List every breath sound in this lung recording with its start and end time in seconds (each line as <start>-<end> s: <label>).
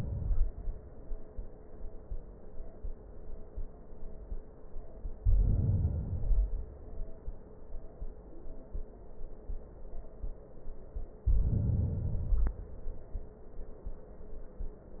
5.16-6.06 s: inhalation
6.07-7.34 s: exhalation
11.20-12.00 s: inhalation
12.02-13.24 s: exhalation